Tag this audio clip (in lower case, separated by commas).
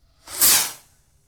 fireworks, explosion